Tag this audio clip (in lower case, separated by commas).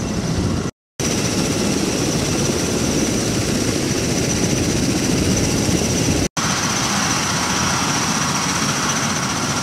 outside, rural or natural, helicopter